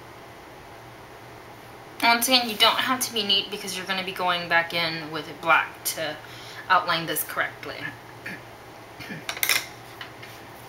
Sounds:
speech, inside a small room

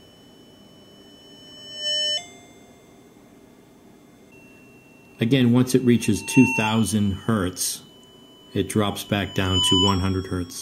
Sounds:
speech, music

